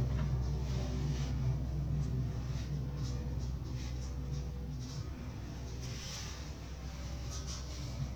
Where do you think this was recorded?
in an elevator